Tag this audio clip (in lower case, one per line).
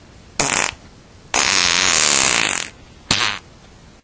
fart